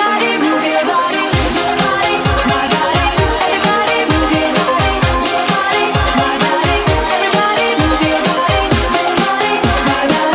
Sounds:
Music

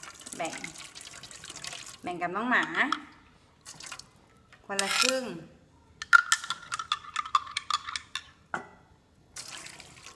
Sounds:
Speech

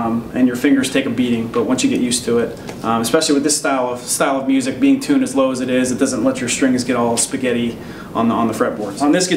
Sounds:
Speech

